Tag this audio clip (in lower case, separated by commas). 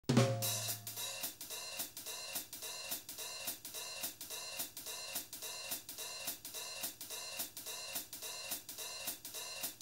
hi-hat, cymbal